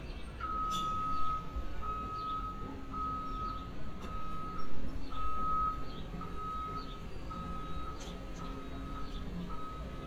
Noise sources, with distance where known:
reverse beeper, near

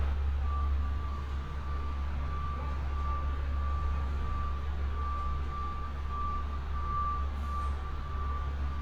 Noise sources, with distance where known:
engine of unclear size, near; reverse beeper, near; unidentified human voice

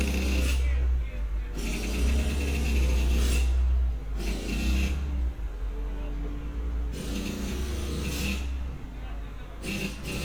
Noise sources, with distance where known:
jackhammer; person or small group talking

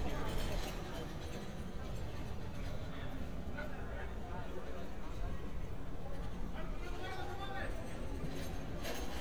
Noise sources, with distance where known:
person or small group talking; person or small group shouting

